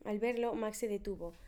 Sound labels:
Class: speech